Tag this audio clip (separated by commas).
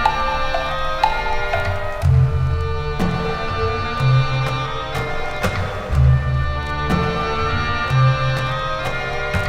Music, Tick-tock